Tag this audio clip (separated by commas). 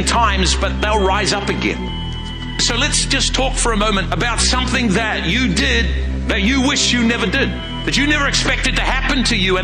Music, Speech